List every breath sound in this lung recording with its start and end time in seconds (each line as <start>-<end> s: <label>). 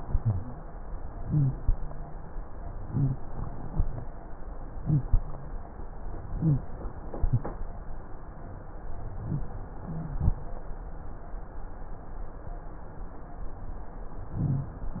0.00-0.57 s: inhalation
0.00-0.57 s: rhonchi
1.20-1.56 s: inhalation
1.20-1.56 s: rhonchi
2.85-3.21 s: inhalation
2.85-3.21 s: rhonchi
4.78-5.07 s: inhalation
4.78-5.07 s: rhonchi
6.39-6.68 s: inhalation
6.39-6.68 s: wheeze
14.36-14.80 s: inhalation
14.36-14.80 s: rhonchi